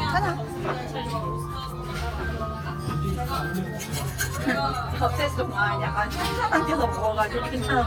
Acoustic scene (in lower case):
crowded indoor space